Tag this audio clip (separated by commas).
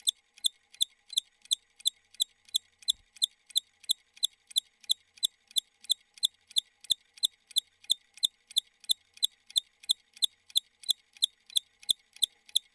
Mechanisms